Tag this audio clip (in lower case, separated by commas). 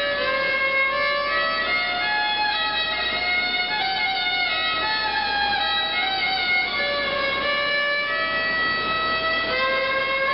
fiddle, music, musical instrument